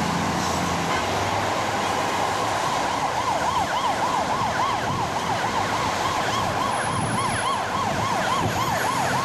An emergency siren is going off